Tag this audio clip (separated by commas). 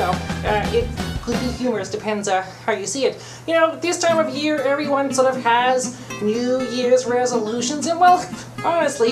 Speech, Music